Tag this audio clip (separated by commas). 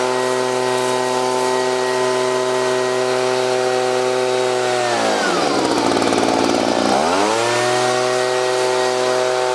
Power tool